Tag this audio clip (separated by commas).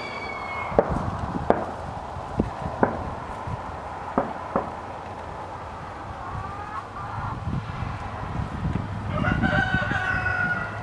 rooster, Fowl, Cluck, cock-a-doodle-doo